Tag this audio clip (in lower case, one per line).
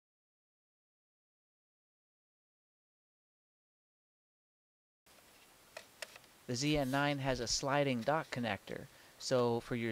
speech